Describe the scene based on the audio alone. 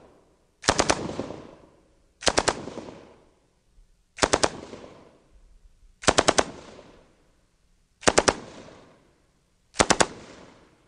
Machine gun firing multiple times